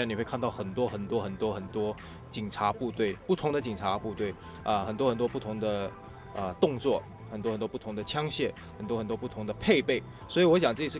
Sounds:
music, speech

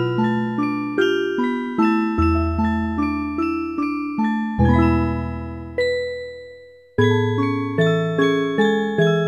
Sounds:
tinkle

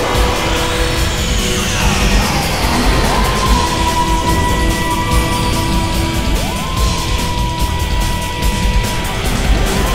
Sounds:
background music, music

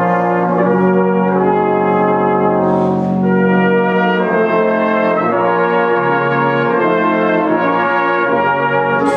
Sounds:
playing cornet

